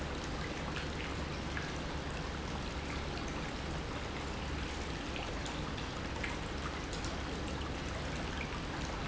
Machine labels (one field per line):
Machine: pump